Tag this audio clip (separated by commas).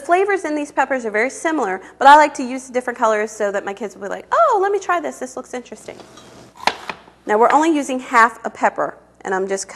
Speech